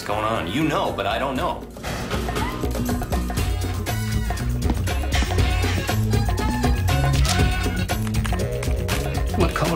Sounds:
Music, Speech

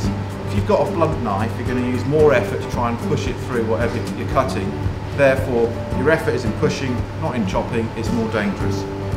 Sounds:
Speech, Music

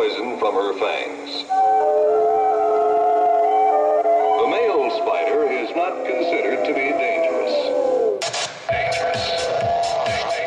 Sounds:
Speech, Music

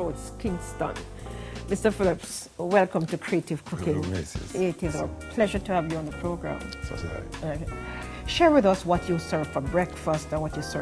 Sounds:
Speech, Music

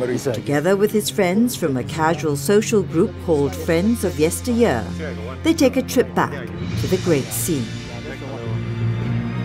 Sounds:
Speech, Music, Conversation, woman speaking, Male speech

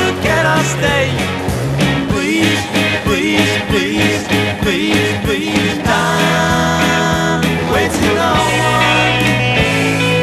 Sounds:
Music, Independent music

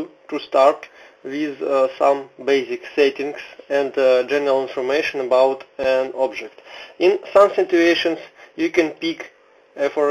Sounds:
Speech

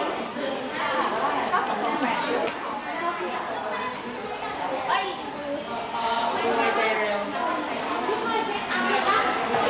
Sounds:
Speech

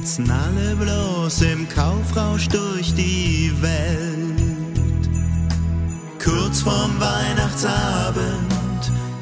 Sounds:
Music

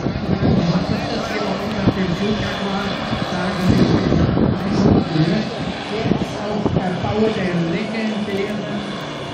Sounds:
Speech, Vehicle

